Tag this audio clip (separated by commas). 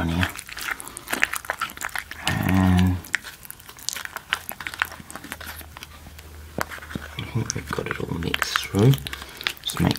inside a small room, Speech